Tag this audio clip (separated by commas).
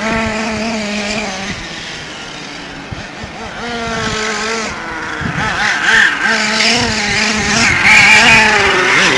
Vehicle